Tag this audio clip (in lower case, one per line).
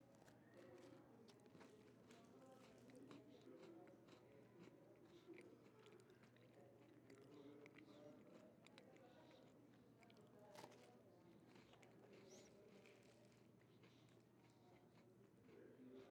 chewing